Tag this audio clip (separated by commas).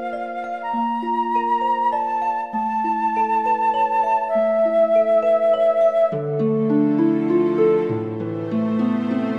Flute, Wind instrument